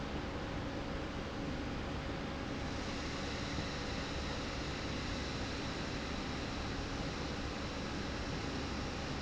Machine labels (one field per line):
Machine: slide rail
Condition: normal